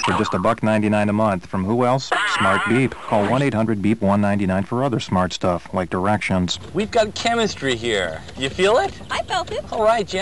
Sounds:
speech

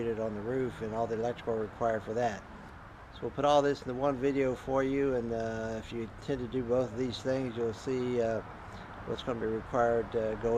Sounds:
speech

